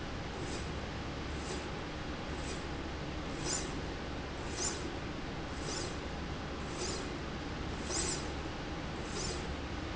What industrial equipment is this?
slide rail